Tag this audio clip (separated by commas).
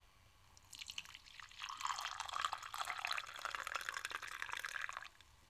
Fill (with liquid), Liquid